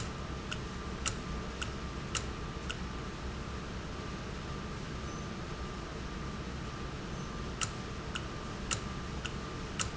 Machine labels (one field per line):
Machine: valve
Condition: normal